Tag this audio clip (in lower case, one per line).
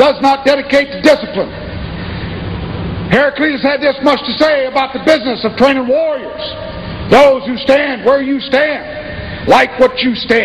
speech
male speech
monologue